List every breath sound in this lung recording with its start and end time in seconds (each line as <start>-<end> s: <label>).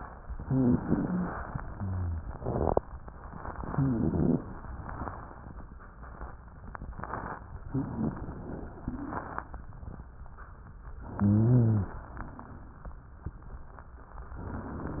0.38-1.31 s: inhalation
0.38-1.31 s: wheeze
1.67-2.26 s: exhalation
1.67-2.26 s: rhonchi
3.49-4.46 s: inhalation
3.72-4.46 s: rhonchi
7.72-8.84 s: inhalation
8.84-9.53 s: exhalation
11.18-12.01 s: inhalation
11.18-12.01 s: wheeze